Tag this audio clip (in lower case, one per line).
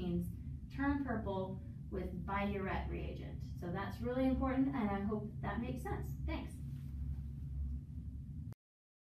speech